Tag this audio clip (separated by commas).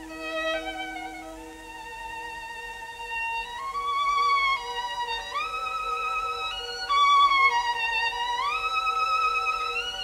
Musical instrument, fiddle, Music